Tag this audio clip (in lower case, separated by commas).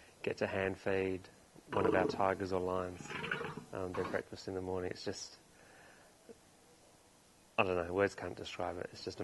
speech